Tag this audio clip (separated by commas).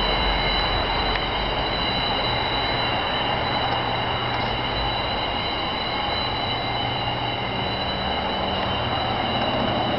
Train